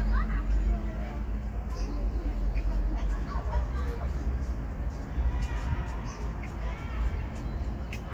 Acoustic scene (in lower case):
park